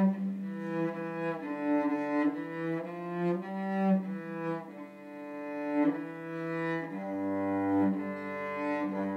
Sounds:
music, cello

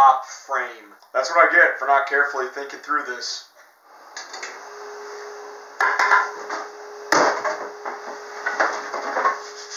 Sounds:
sanding, rub, wood

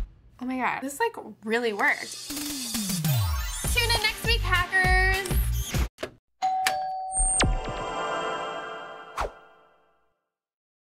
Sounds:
music, speech, inside a small room

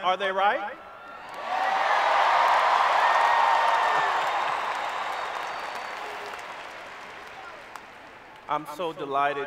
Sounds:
monologue, speech, male speech

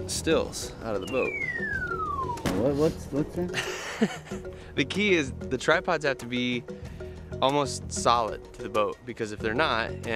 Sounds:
music, speech

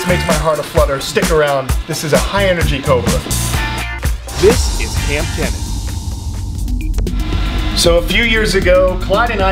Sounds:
music, speech, inside a small room

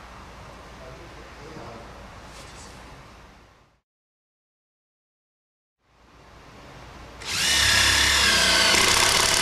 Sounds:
wood, speech

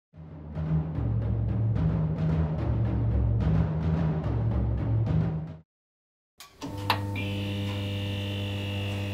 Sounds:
timpani, music

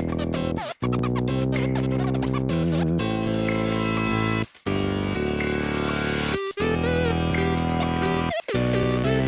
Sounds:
music

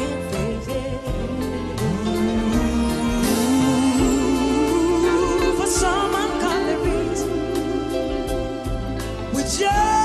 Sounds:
music, singing

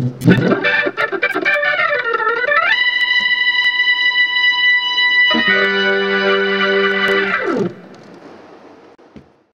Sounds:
music

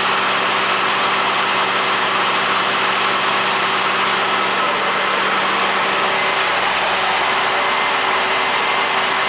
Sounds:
truck, vehicle

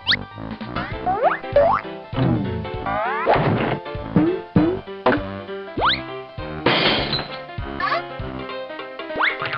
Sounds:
music

